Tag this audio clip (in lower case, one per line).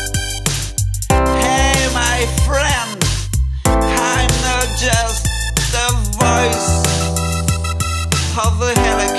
music
electronic music